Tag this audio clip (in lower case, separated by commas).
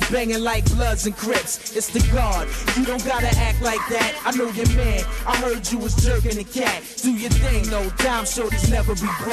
rapping, music